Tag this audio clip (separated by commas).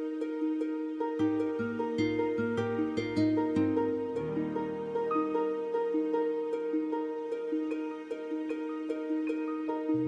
Music